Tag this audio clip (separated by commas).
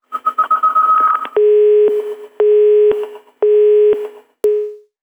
Telephone, Alarm